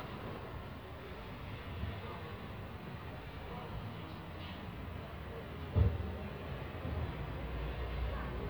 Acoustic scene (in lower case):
residential area